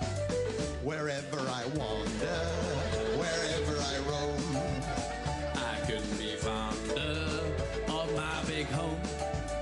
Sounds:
Music, Male singing

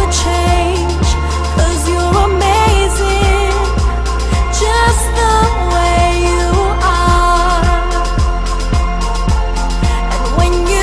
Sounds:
Pop music, Music

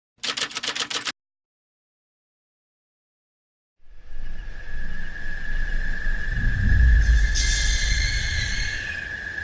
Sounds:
Music

